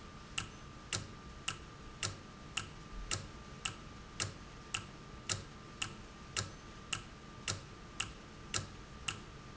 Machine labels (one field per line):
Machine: valve